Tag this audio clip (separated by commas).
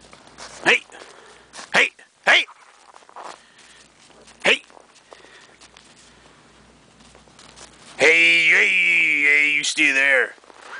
coyote howling